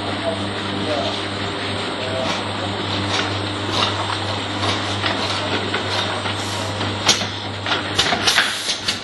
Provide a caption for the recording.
A machine motor running as metal clanks followed by compressed air releasing while a man talks faintly in the background